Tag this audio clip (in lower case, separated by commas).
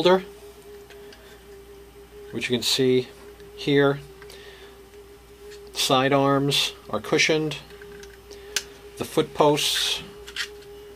speech, inside a small room